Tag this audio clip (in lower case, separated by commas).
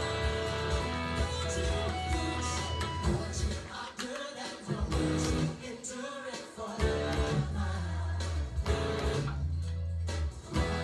acoustic guitar, guitar, music, musical instrument